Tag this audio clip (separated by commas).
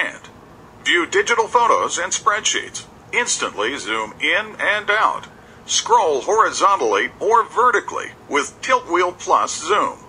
Speech